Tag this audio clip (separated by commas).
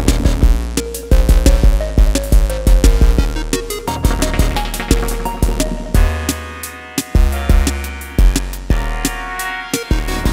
Drum machine